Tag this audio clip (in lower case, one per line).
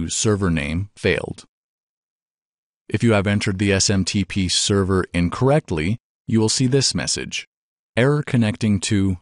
inside a small room
speech